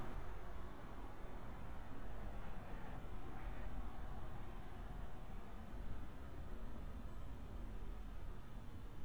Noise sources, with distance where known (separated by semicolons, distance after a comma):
background noise